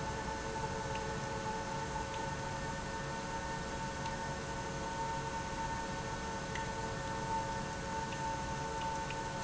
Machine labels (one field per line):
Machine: pump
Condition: abnormal